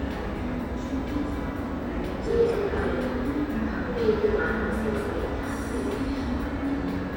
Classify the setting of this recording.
subway station